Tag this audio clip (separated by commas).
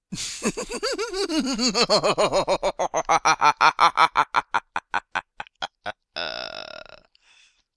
Laughter, Human voice